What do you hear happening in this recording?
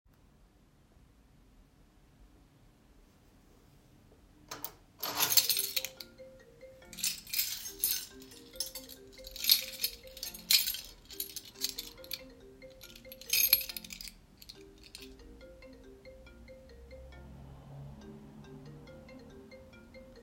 I was playing with my keychain on the desk while my phone was ringing in the background.